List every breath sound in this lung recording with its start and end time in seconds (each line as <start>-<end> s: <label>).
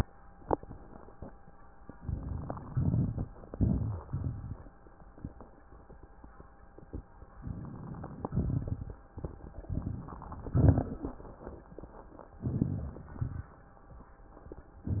1.90-2.66 s: inhalation
1.92-2.61 s: crackles
2.64-3.28 s: crackles
2.66-3.28 s: exhalation
3.43-4.06 s: inhalation
3.43-4.06 s: crackles
4.09-4.72 s: exhalation
4.09-4.72 s: crackles
7.36-8.26 s: inhalation
7.36-8.26 s: crackles
8.29-9.05 s: exhalation
8.29-9.05 s: crackles
9.67-10.49 s: inhalation
9.67-10.49 s: crackles
10.52-11.01 s: exhalation
10.52-11.01 s: crackles
12.40-13.18 s: inhalation
12.40-13.18 s: crackles
13.21-13.60 s: exhalation
13.21-13.60 s: crackles